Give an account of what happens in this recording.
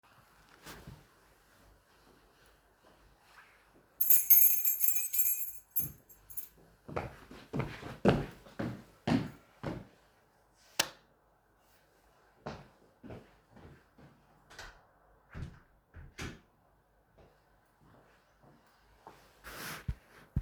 I took my keys, went to turn off the lights, then I open and closed the door to leave.